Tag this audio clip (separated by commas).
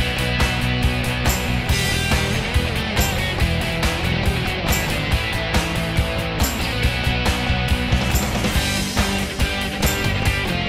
Music